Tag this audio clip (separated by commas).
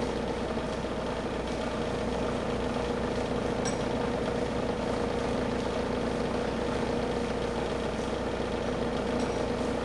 speedboat, Vehicle